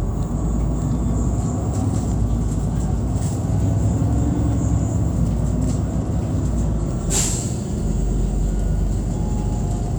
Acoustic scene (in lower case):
bus